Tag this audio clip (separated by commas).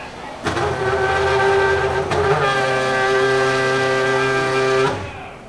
Vehicle, Engine, Race car, revving, Car, Motor vehicle (road)